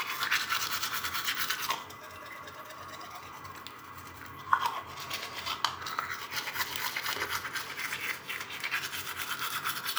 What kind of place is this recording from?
restroom